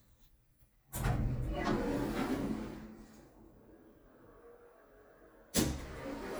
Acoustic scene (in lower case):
elevator